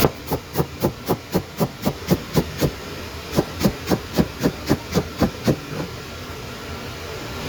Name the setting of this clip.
kitchen